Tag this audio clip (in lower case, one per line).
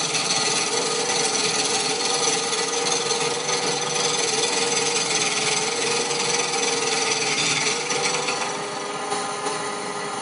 lathe spinning